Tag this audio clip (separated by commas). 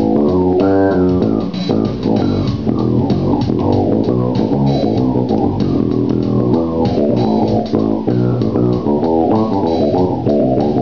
Musical instrument, Music, Plucked string instrument, Guitar, playing bass guitar, Bass guitar, Electric guitar, Bowed string instrument